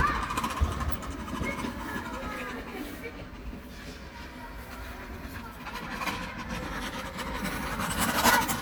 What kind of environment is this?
park